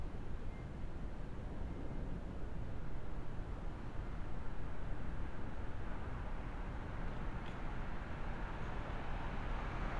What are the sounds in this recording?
medium-sounding engine